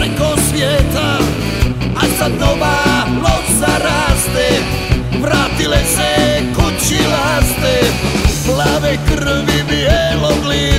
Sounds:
Psychedelic rock

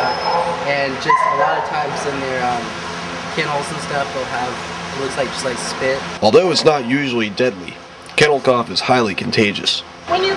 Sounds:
Speech

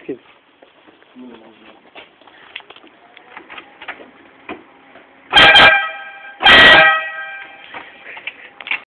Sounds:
Vehicle horn

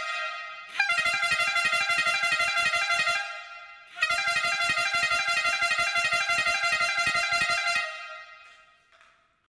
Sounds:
truck horn

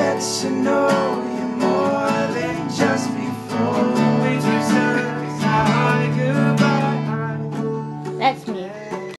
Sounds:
Music, Speech

